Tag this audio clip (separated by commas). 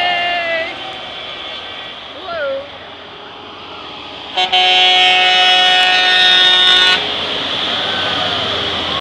Truck, Vehicle, Speech